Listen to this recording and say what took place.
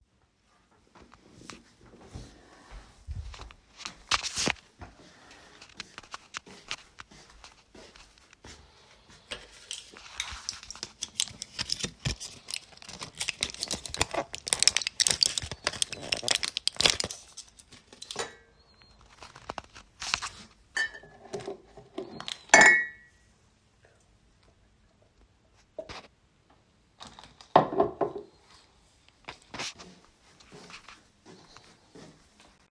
I walked into the kitchen and handled dishes while opening and closing the microwave.